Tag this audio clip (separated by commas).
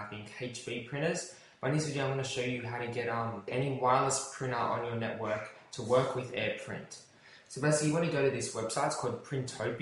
Speech